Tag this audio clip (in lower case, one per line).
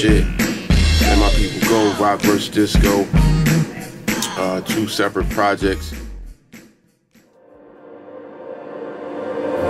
speech
music